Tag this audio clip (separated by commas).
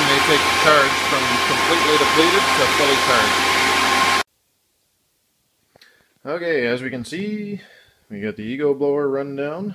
Speech